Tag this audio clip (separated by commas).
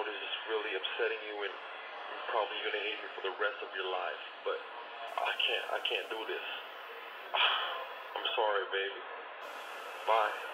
Speech